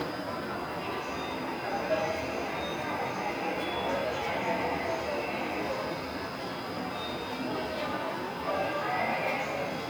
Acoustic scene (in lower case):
subway station